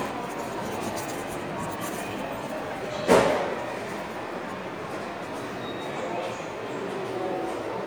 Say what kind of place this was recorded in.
subway station